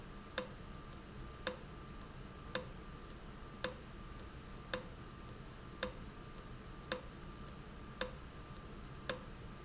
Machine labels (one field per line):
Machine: valve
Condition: abnormal